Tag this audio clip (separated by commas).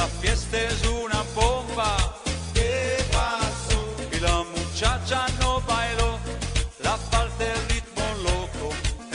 Music